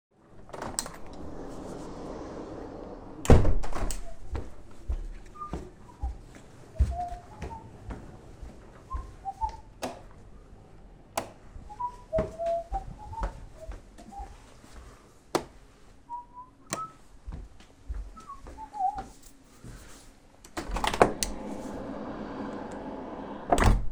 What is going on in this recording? Opening a window in the living room, walking up to the light switch, going to a different room, light switch, and opening a different window